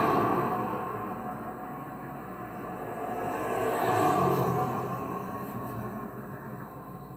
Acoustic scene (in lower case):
street